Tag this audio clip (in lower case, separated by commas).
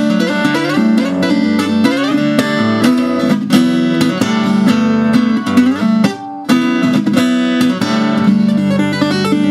music, musical instrument, guitar, plucked string instrument